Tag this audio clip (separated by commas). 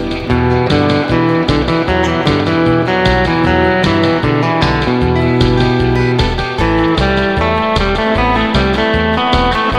slide guitar